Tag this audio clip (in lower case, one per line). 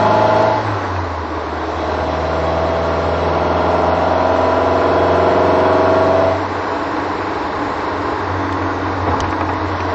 revving
car
vehicle
medium engine (mid frequency)
engine